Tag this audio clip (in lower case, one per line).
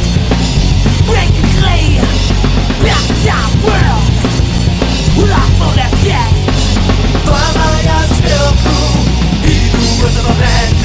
music